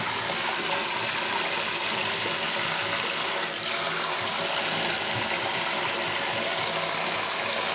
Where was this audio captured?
in a restroom